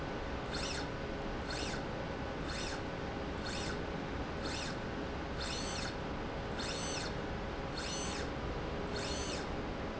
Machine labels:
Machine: slide rail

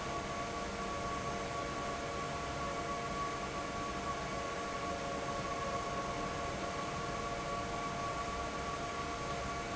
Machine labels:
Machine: fan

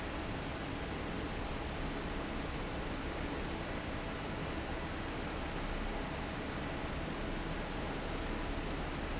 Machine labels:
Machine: fan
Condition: normal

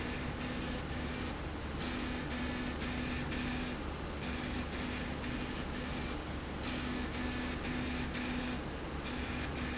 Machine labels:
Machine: slide rail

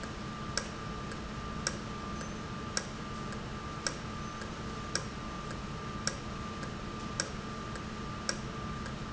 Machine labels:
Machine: valve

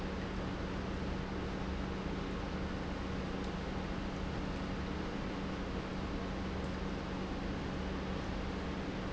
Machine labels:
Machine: pump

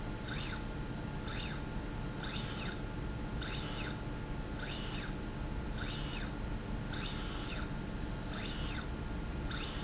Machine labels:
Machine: slide rail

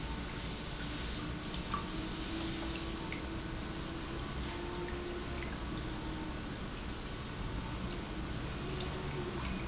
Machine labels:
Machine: pump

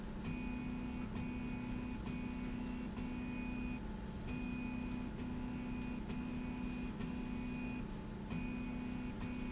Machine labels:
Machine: slide rail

